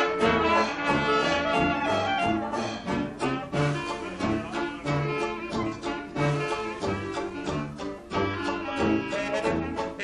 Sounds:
Orchestra, Music, Jazz

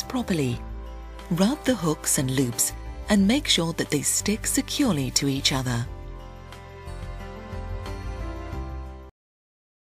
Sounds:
Music, Speech

